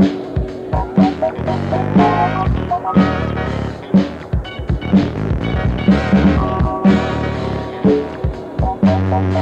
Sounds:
funk, music

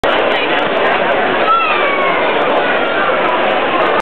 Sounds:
speech

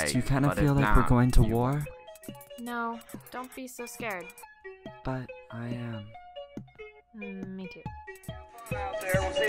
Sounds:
speech, music

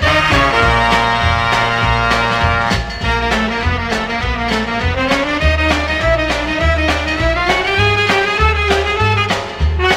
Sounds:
disco, music, rhythm and blues, blues

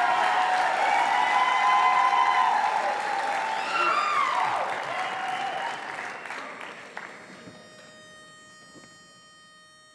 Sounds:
clapping, applause, music, crowd

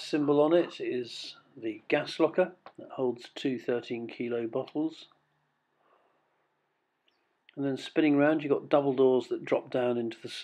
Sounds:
speech

